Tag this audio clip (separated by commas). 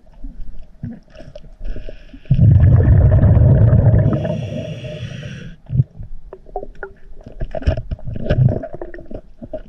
scuba diving